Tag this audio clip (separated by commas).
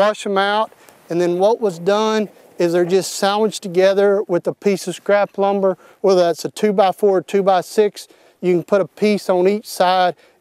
Speech